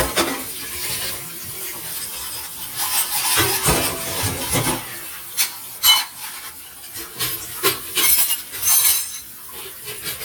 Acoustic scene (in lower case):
kitchen